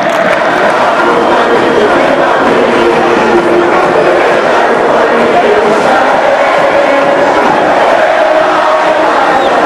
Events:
0.0s-9.6s: hubbub
9.2s-9.4s: tweet

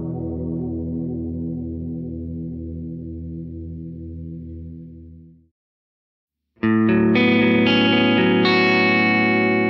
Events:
0.0s-5.5s: music
0.0s-5.5s: electronic tuner
6.5s-9.6s: music
6.5s-9.6s: electronic tuner

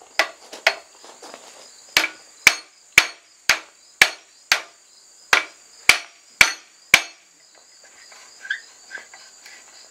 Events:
0.0s-9.9s: insect
0.2s-0.3s: hammer
0.3s-0.6s: walk
0.6s-0.8s: hammer
0.9s-1.7s: walk
1.9s-2.1s: hammer
2.4s-2.6s: hammer
2.9s-3.1s: hammer
3.4s-3.6s: hammer
4.0s-4.2s: hammer
4.5s-4.7s: hammer
5.3s-5.5s: hammer
5.8s-6.1s: hammer
6.3s-6.5s: hammer
6.9s-7.1s: hammer
7.5s-7.6s: generic impact sounds
7.8s-9.9s: surface contact
8.4s-8.6s: squeal
8.9s-9.0s: squeal

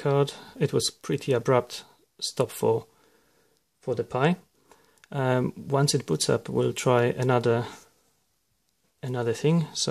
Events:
0.0s-0.3s: man speaking
0.0s-9.9s: background noise
0.3s-0.5s: breathing
0.6s-1.8s: man speaking
1.7s-2.1s: breathing
2.1s-2.8s: man speaking
2.8s-3.6s: breathing
3.8s-4.5s: man speaking
4.5s-5.1s: breathing
4.7s-5.1s: generic impact sounds
5.0s-7.8s: man speaking
5.9s-6.1s: generic impact sounds
7.1s-7.5s: generic impact sounds
7.5s-7.8s: breathing
9.0s-9.9s: man speaking

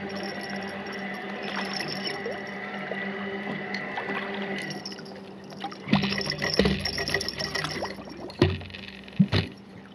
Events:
0.0s-9.9s: motorboat
0.0s-9.9s: ocean
6.5s-6.8s: tap
8.4s-8.6s: tap
9.2s-9.5s: tap

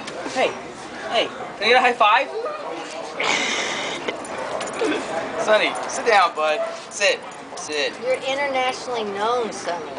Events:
0.0s-9.9s: background noise
0.0s-9.9s: hubbub
0.1s-0.5s: man speaking
0.9s-1.2s: man speaking
1.5s-2.3s: man speaking
2.3s-2.9s: dog
3.1s-4.0s: human voice
4.0s-4.1s: generic impact sounds
4.5s-4.6s: generic impact sounds
4.7s-5.0s: human voice
5.4s-5.7s: man speaking
5.9s-6.8s: man speaking
6.5s-6.8s: bark
6.9s-7.2s: man speaking
7.5s-7.9s: man speaking
8.0s-9.8s: female speech

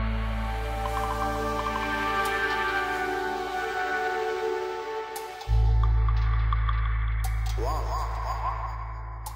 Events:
0.0s-9.3s: music
0.8s-1.3s: frog
1.5s-1.9s: frog
5.8s-6.1s: frog
6.4s-6.8s: frog
7.5s-9.1s: frog

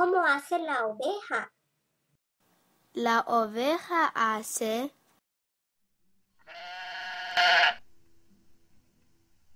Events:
0.0s-1.4s: woman speaking
0.0s-5.1s: background noise
2.9s-4.9s: woman speaking
5.7s-9.5s: background noise
6.4s-7.9s: bleat

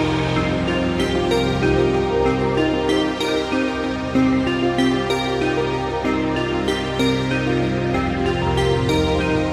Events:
0.0s-9.5s: music

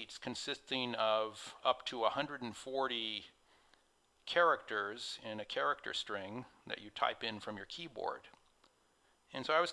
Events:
0.0s-3.3s: male speech
0.0s-9.7s: mechanisms
1.8s-1.9s: tick
3.4s-4.0s: breathing
3.7s-3.8s: tick
4.0s-4.1s: tick
4.3s-8.3s: male speech
8.3s-8.4s: tick
8.6s-8.7s: tick
8.9s-9.3s: breathing
9.3s-9.7s: male speech

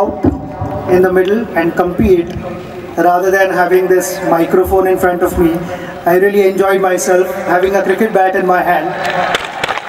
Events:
0.0s-1.0s: music
0.0s-9.8s: background noise
0.9s-2.4s: man speaking
2.0s-2.5s: music
2.8s-3.0s: speech
2.9s-5.6s: man speaking
4.7s-5.6s: music
5.6s-5.9s: breathing
6.0s-9.2s: man speaking
9.0s-9.8s: clapping

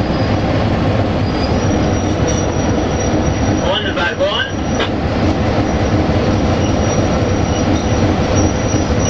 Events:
0.0s-0.4s: train wheels squealing
0.0s-9.0s: train
1.2s-4.9s: train wheels squealing
3.6s-4.6s: man speaking
4.7s-5.0s: generic impact sounds
5.6s-6.0s: train wheels squealing
6.2s-9.0s: train wheels squealing

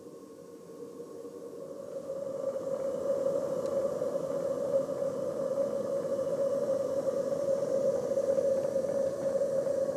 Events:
0.0s-9.9s: steam
3.6s-3.7s: generic impact sounds
8.6s-8.7s: generic impact sounds

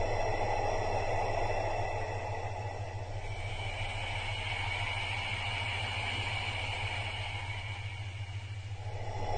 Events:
0.0s-9.3s: music

